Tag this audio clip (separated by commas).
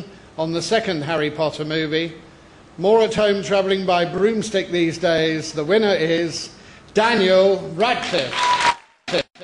Male speech, Speech